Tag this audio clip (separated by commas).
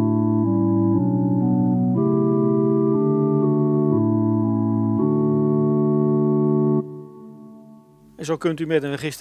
Music, Piano, Speech, Keyboard (musical), Musical instrument